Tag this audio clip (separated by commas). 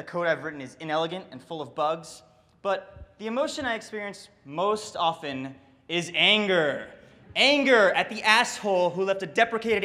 Speech